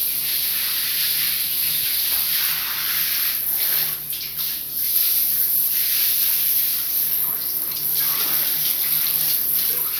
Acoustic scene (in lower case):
restroom